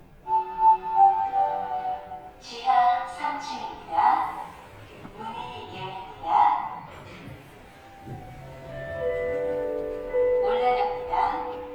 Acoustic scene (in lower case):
elevator